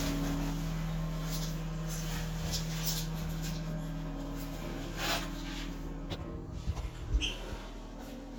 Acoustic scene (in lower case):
restroom